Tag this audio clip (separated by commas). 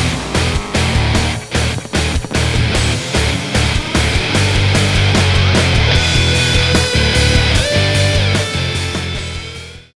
Vehicle, Truck, Music